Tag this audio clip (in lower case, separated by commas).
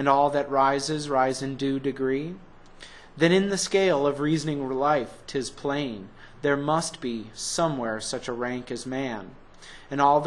speech